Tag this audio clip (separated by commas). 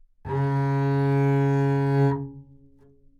Musical instrument, Music, Bowed string instrument